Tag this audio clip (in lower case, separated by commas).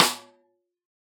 musical instrument, snare drum, drum, percussion, music